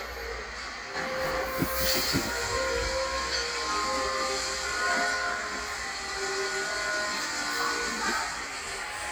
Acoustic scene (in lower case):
cafe